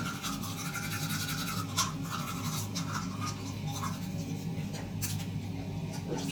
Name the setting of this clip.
restroom